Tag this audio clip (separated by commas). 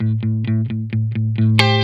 Musical instrument, Guitar, Electric guitar, Music, Plucked string instrument